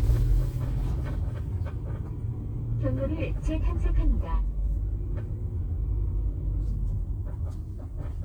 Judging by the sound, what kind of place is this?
car